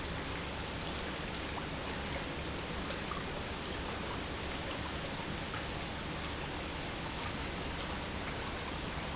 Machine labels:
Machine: pump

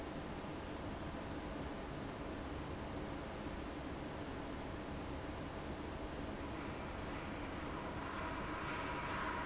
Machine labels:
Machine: fan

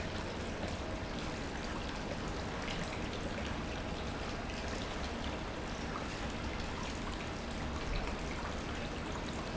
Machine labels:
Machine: pump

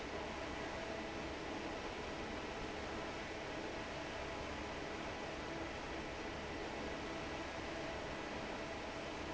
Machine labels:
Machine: fan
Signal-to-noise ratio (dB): 6 dB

